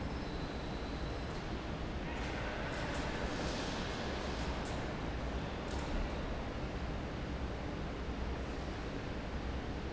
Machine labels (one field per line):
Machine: fan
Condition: normal